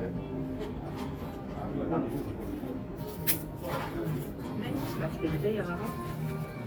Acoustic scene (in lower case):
cafe